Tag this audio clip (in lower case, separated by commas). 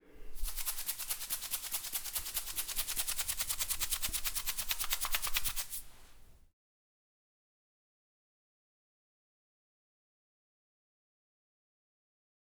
rattle (instrument), musical instrument, music, percussion